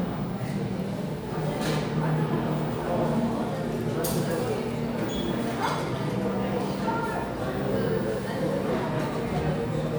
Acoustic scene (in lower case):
crowded indoor space